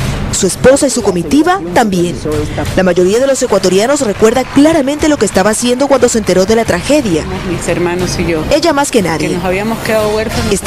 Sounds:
Music, Speech

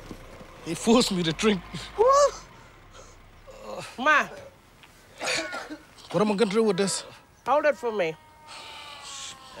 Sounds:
Speech

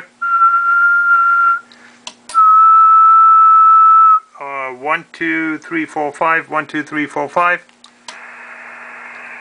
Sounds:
Speech, Radio

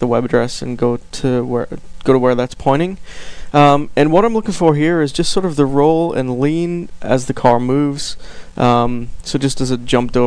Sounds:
Speech

